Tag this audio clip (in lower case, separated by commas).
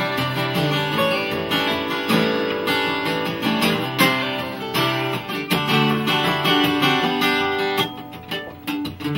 musical instrument, guitar, acoustic guitar, plucked string instrument, music